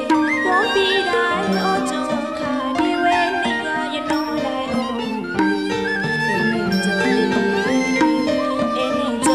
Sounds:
Music

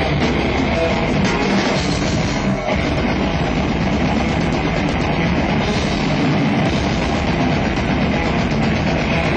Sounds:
Heavy metal, Guitar, Rock music, Music, Musical instrument, Plucked string instrument

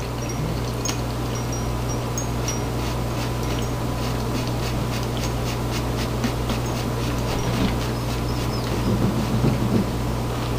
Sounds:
Engine

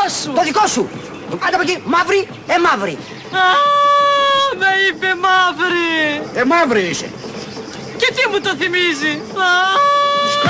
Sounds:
Speech

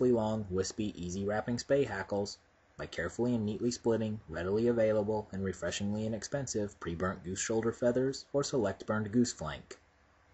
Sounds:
Speech

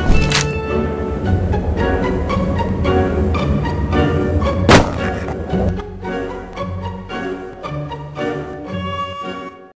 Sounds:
Music

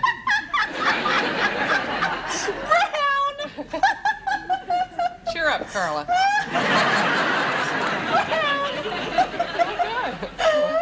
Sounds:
Laughter

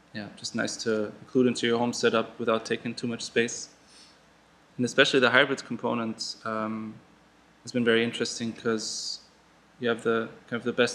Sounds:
Speech

